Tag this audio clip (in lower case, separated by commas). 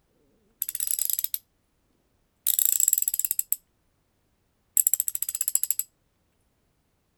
tools